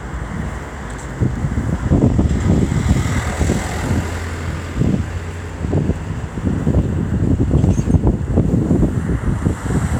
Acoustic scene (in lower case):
street